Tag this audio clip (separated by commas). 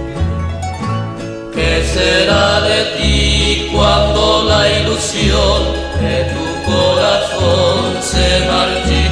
Vocal music, Music